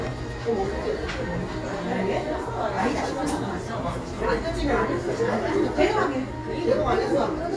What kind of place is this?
cafe